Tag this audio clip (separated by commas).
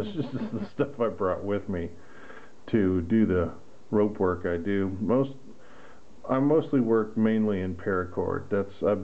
Speech